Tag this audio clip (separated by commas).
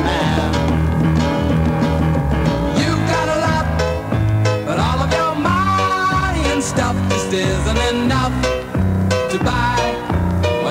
Music